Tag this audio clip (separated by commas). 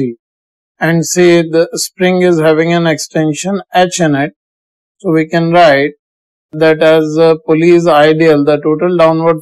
Speech